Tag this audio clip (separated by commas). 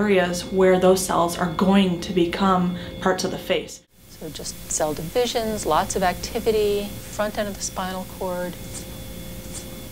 Speech